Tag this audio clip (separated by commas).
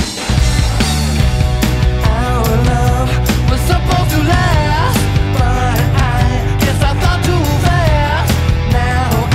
Funk, Dance music, Pop music, Music